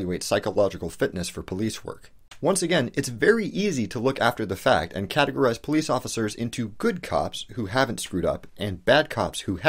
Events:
0.0s-2.0s: male speech
0.0s-9.6s: background noise
2.0s-2.1s: tick
2.3s-2.4s: tick
2.4s-9.6s: male speech

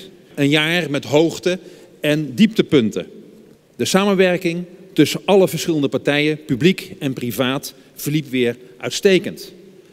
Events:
0.0s-9.9s: background noise
0.3s-1.6s: male speech
2.0s-3.1s: male speech
3.8s-4.6s: male speech
4.9s-7.7s: male speech
7.9s-8.5s: male speech
8.8s-9.6s: male speech

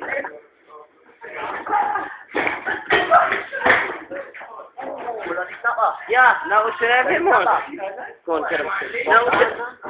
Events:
0.0s-9.7s: conversation
0.0s-9.8s: background noise
1.2s-1.6s: surface contact
2.3s-2.8s: generic impact sounds
3.6s-3.9s: thump
4.8s-5.3s: human sounds
8.3s-9.8s: man speaking
9.3s-9.4s: tap

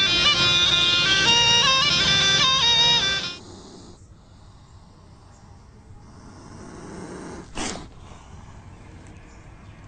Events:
0.0s-3.4s: music
0.0s-9.8s: background noise
3.4s-8.6s: hiss
4.6s-4.7s: bird vocalization
5.3s-5.4s: bird vocalization

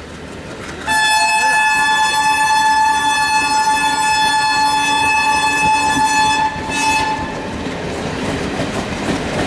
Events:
0.0s-9.4s: train
0.8s-7.5s: train horn
1.3s-1.6s: man speaking
4.2s-4.6s: clickety-clack
4.9s-5.3s: clickety-clack
5.6s-6.0s: clickety-clack
6.5s-7.2s: clickety-clack
8.4s-8.8s: clickety-clack
9.0s-9.4s: clickety-clack

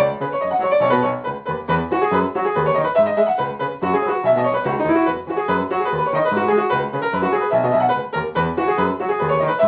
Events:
0.0s-9.6s: music

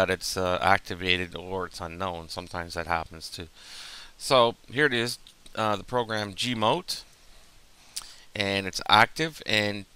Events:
0.0s-3.5s: man speaking
0.0s-9.9s: mechanisms
3.5s-4.2s: breathing
4.2s-4.6s: man speaking
4.7s-5.2s: man speaking
5.3s-5.6s: generic impact sounds
5.6s-7.1s: man speaking
7.1s-7.2s: tick
7.8s-8.3s: breathing
8.0s-8.2s: human sounds
8.4s-9.9s: man speaking

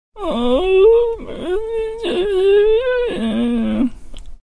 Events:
0.1s-4.4s: mechanisms
0.2s-3.9s: human sounds
1.1s-1.2s: tick
3.9s-4.0s: breathing
3.9s-4.0s: tick
4.2s-4.3s: human sounds

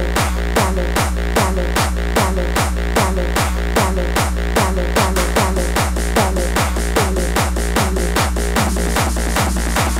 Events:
0.0s-9.9s: music

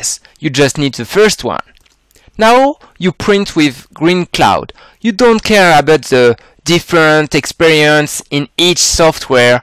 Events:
0.0s-0.2s: man speaking
0.0s-9.6s: background noise
0.3s-0.4s: generic impact sounds
0.4s-1.6s: man speaking
1.6s-2.4s: generic impact sounds
2.1s-2.4s: breathing
2.4s-2.8s: man speaking
3.0s-4.7s: man speaking
4.6s-4.8s: generic impact sounds
4.7s-5.1s: breathing
5.1s-6.4s: man speaking
6.4s-6.7s: breathing
6.7s-9.6s: man speaking

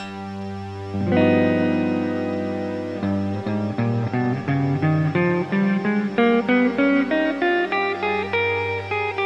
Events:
0.0s-9.2s: music

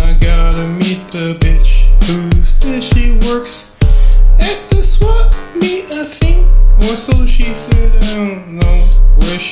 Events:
0.0s-3.6s: male singing
0.0s-9.5s: music
4.4s-6.5s: male singing
6.8s-9.5s: male singing

